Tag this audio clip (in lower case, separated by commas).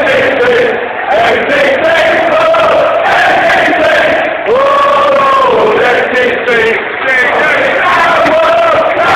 speech